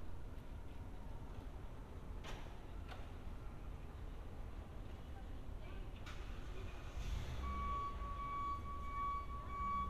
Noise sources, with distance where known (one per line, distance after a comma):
reverse beeper, near
unidentified human voice, far